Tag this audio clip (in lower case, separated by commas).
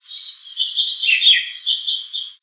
wild animals, bird call, animal, chirp, bird